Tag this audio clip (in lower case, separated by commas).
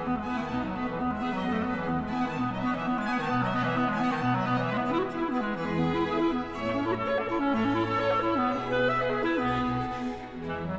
playing clarinet